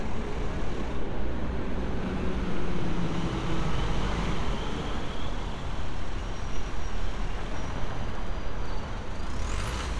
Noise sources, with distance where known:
large-sounding engine

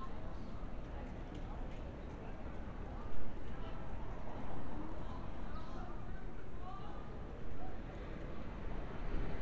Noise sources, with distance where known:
unidentified human voice, far

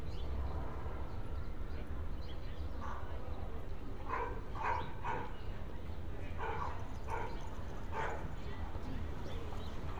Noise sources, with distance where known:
dog barking or whining

